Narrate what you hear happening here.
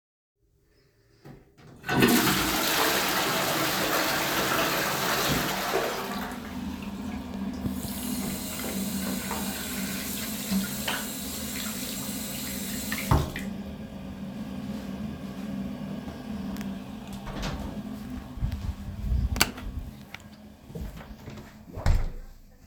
I flushed the toilet and then washed my hands using soap from the dispenser. After washing my hands, I dried them with a towel. I opened the toilet door, turned off the lights and walked out, and closed the door again.